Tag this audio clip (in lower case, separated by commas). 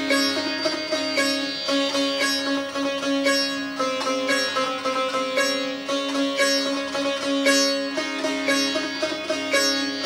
playing sitar